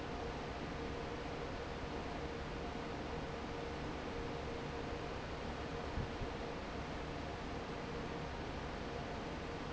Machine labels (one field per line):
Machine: fan